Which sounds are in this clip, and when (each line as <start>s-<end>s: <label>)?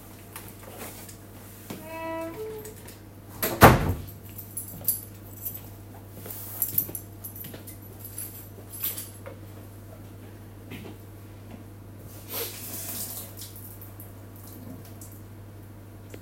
1.6s-2.9s: door
3.3s-4.2s: door
4.4s-9.4s: keys
4.4s-12.1s: footsteps
12.2s-13.8s: running water